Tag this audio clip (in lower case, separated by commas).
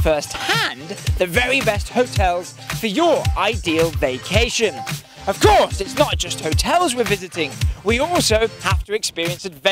speech, music